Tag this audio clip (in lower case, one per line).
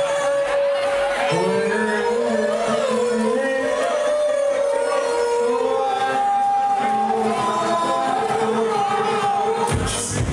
house music
music